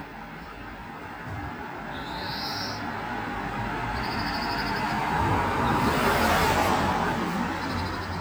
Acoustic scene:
street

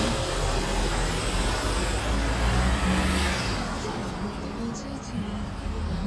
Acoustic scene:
street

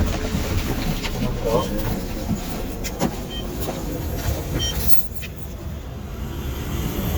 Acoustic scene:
bus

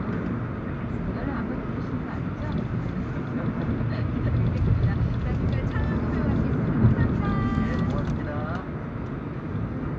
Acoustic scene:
car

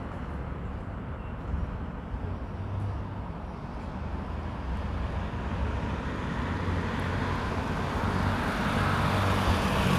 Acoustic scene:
street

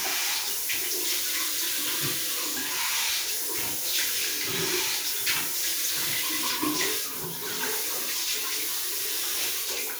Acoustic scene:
restroom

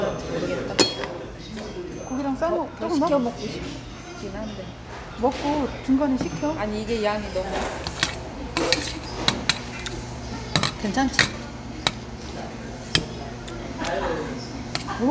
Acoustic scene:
restaurant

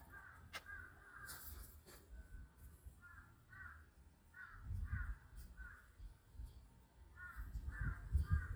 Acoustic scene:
park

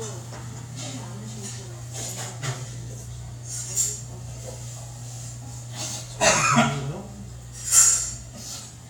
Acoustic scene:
restaurant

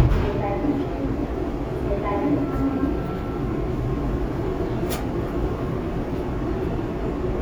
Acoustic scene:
subway train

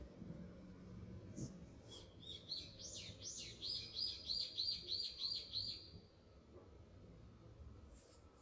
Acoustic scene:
park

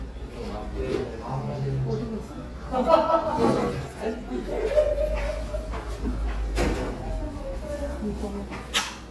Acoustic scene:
restaurant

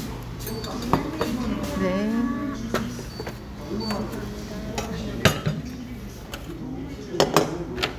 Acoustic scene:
crowded indoor space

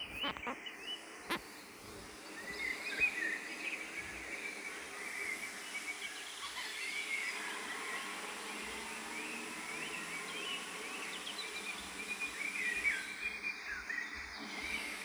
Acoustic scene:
park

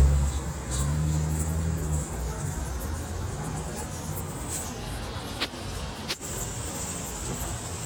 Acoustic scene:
street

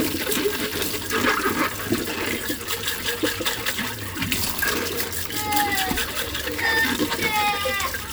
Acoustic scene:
kitchen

